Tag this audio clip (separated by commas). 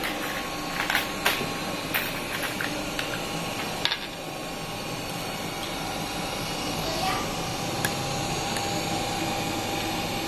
using sewing machines